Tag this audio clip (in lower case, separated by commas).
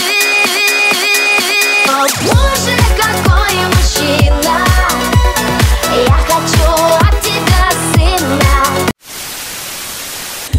dance music, pop music, music